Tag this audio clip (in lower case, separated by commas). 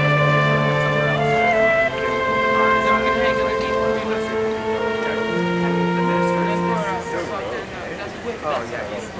music, violin, musical instrument, speech, flute